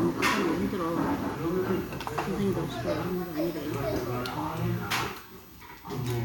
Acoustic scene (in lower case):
restaurant